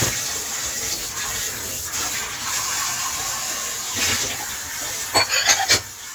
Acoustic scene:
kitchen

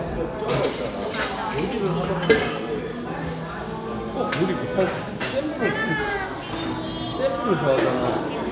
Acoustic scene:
cafe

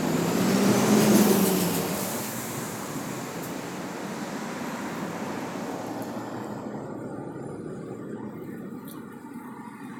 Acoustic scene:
street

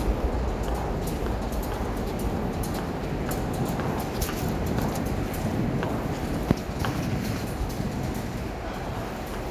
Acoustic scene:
subway station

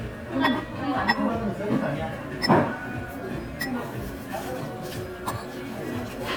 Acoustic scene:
crowded indoor space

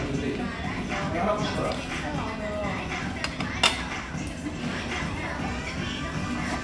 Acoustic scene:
restaurant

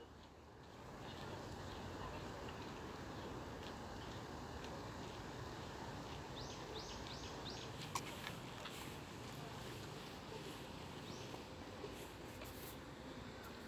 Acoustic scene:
park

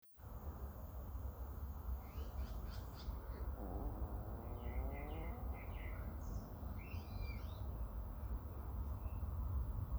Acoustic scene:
park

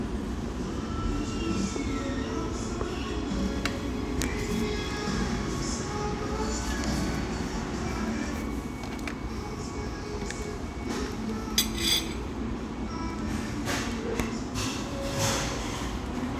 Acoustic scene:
cafe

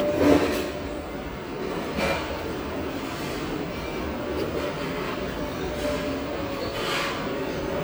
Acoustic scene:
restaurant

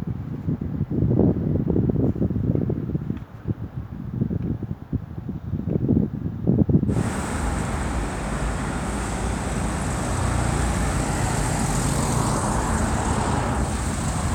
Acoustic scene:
street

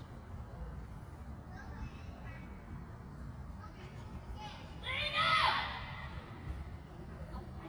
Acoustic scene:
park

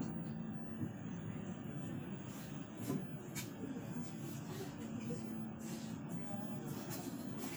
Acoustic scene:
bus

